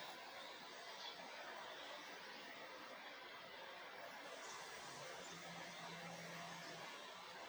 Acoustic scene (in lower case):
park